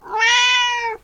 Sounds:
meow, domestic animals, cat, animal

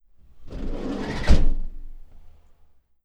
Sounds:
vehicle

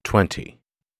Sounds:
human voice, speech

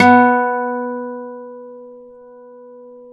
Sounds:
acoustic guitar, guitar, musical instrument, music, plucked string instrument

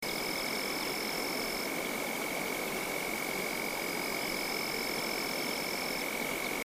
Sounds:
animal, insect, wild animals

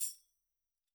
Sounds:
percussion, musical instrument, tambourine, music

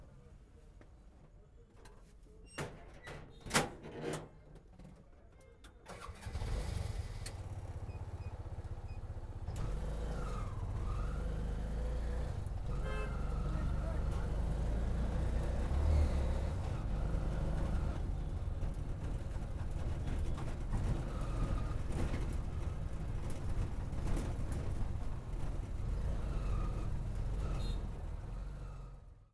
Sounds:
motor vehicle (road), vehicle

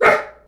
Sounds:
domestic animals, animal, dog

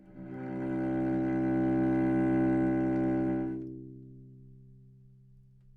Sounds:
bowed string instrument, musical instrument, music

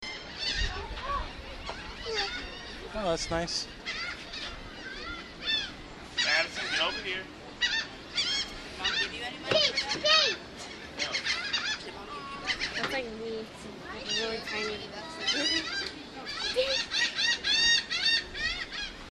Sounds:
bird, seagull, wild animals, animal

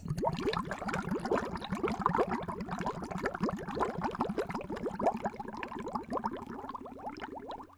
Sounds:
water, liquid, gurgling

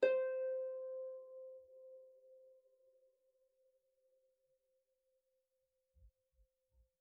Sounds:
music, musical instrument, harp

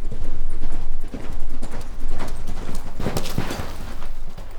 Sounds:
livestock, animal

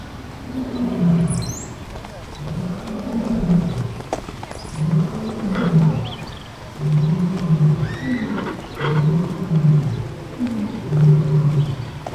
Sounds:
bird, wild animals, animal

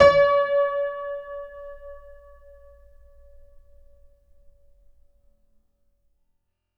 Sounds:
music, piano, musical instrument, keyboard (musical)

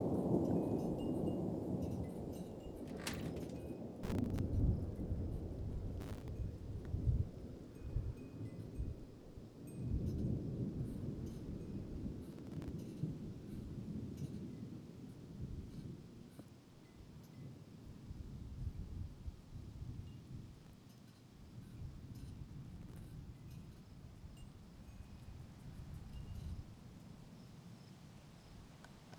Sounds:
thunderstorm, thunder

